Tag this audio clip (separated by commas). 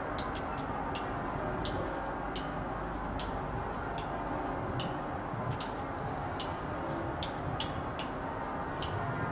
Rail transport, Railroad car, Train, Vehicle